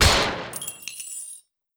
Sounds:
gunfire, Explosion

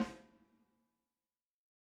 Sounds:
Musical instrument, Drum, Snare drum, Percussion, Music

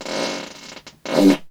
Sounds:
Fart

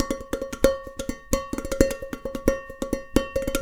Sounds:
dishes, pots and pans, Domestic sounds

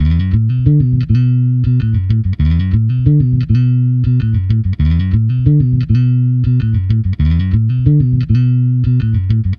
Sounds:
Bass guitar, Musical instrument, Guitar, Music, Plucked string instrument

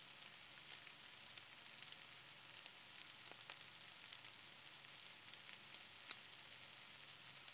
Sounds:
Domestic sounds, Frying (food)

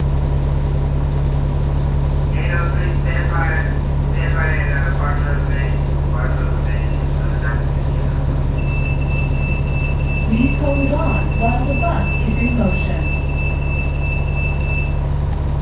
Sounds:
Vehicle, Bus, Motor vehicle (road)

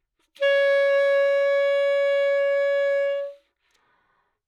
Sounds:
Music, Musical instrument, woodwind instrument

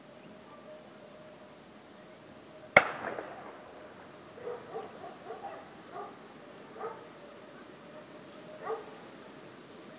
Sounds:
Explosion, gunfire

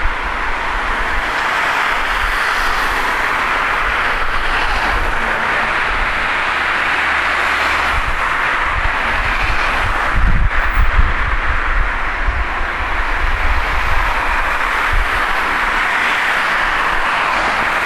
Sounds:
roadway noise, Vehicle, Motor vehicle (road)

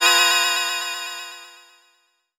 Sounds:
Keyboard (musical), Musical instrument, Organ, Music

